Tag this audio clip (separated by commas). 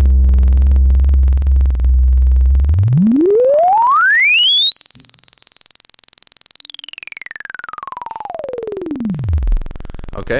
Musical instrument, Synthesizer, Music